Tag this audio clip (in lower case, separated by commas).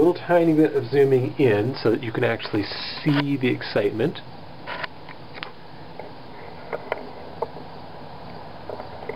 speech